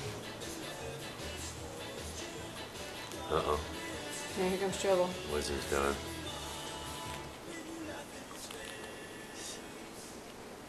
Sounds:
Music, Speech

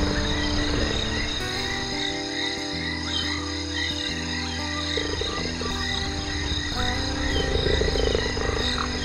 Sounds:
cheetah chirrup

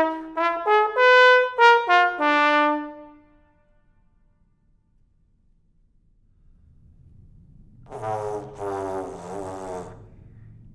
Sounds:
playing trombone

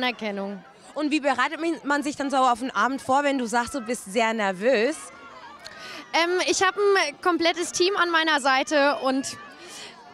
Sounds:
Speech

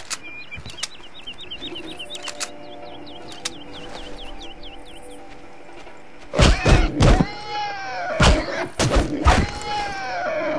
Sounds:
Music, Oink

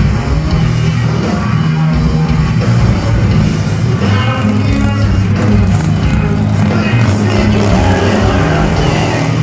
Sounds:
Music, Vehicle, Motorcycle

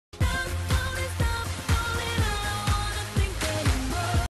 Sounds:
Music

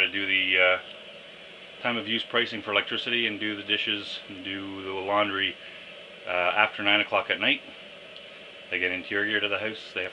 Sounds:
Speech

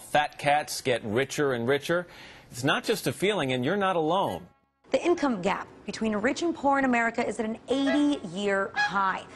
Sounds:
Speech

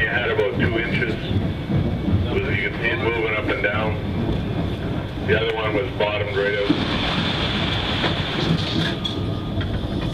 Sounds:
Speech

